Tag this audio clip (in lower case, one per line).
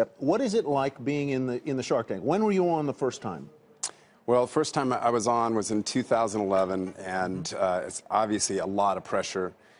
speech